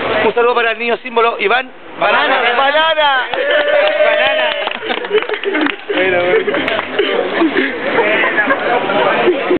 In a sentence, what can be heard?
An adult male is speaking and a crowd is applauds